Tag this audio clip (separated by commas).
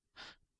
Breathing, Respiratory sounds, Gasp